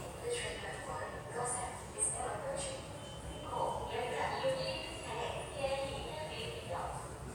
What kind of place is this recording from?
subway station